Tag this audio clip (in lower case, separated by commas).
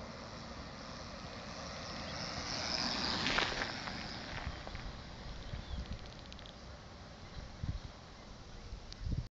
bicycle